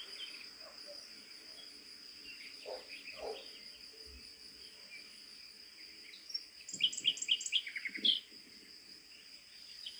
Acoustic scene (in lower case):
park